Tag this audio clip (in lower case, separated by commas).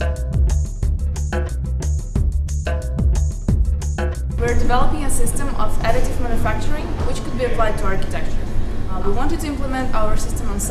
music, speech